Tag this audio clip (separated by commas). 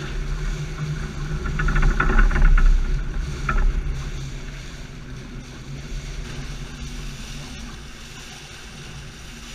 Vehicle, Boat, Sailboat